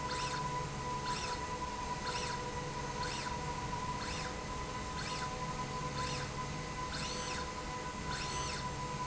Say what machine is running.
slide rail